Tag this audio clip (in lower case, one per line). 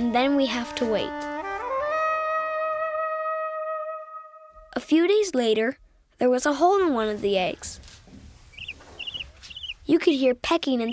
music
speech